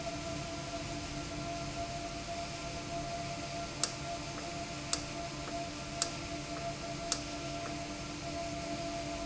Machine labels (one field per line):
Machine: valve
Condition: normal